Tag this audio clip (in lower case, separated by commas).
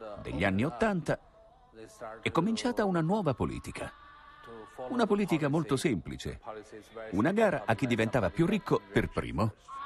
speech